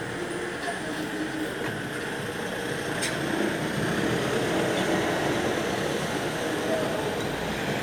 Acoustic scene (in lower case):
street